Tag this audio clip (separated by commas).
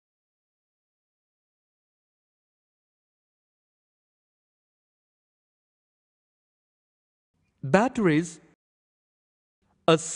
Speech